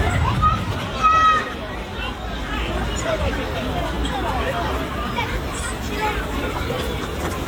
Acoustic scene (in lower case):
park